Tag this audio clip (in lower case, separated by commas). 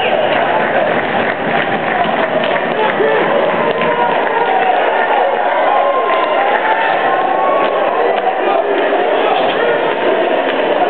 speech